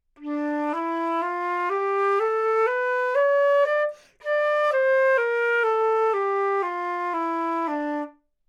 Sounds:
music
musical instrument
woodwind instrument

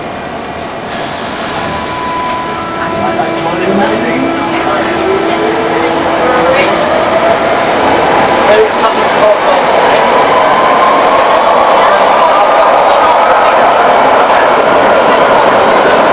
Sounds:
rail transport
vehicle
metro

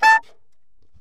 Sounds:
music
wind instrument
musical instrument

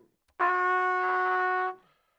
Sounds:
music
trumpet
musical instrument
brass instrument

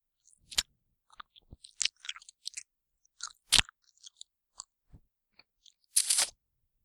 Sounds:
chewing

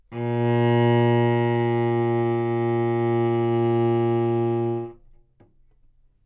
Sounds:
music
bowed string instrument
musical instrument

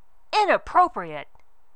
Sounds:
speech
woman speaking
human voice

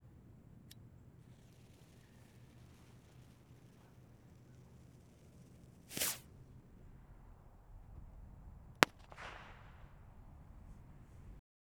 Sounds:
explosion
fireworks

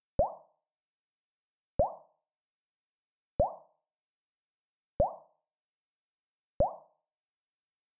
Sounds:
drip
liquid

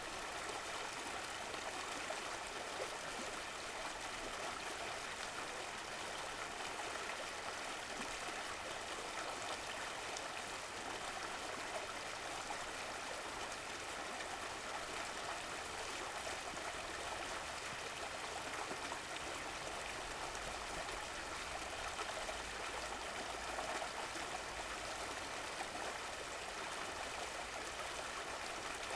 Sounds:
stream
water

